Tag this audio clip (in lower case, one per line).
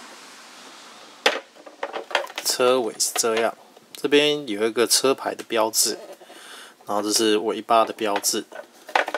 speech